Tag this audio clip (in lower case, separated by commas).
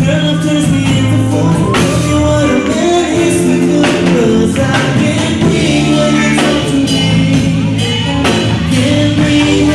speech, music, male singing